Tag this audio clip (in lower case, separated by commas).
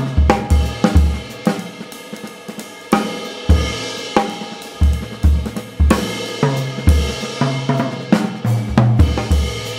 rimshot, drum, bass drum, hi-hat, percussion, cymbal, drum kit, snare drum